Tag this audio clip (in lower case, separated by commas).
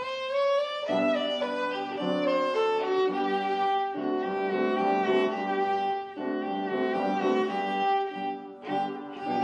violin, classical music, musical instrument, speech, bowed string instrument, music